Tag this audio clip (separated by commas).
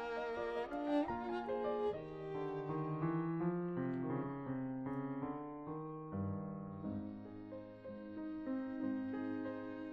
Music, Musical instrument, fiddle